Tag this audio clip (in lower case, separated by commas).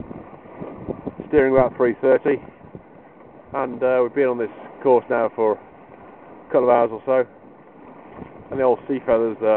wind, water vehicle, sailboat, wind noise (microphone)